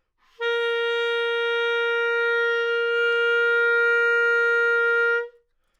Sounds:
music
woodwind instrument
musical instrument

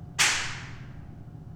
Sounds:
hands
clapping

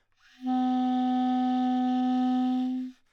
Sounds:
musical instrument
music
woodwind instrument

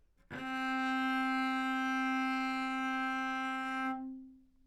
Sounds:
bowed string instrument
music
musical instrument

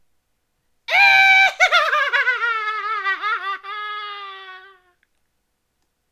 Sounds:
human voice
laughter

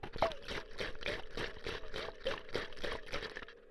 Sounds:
liquid

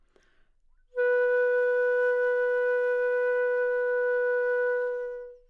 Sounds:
musical instrument
woodwind instrument
music

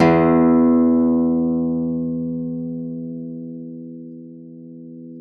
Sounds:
plucked string instrument
music
acoustic guitar
guitar
musical instrument

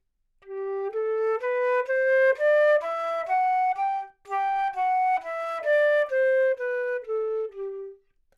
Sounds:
wind instrument
musical instrument
music

